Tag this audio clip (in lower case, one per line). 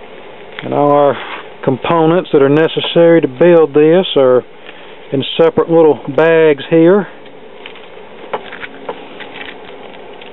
speech
inside a small room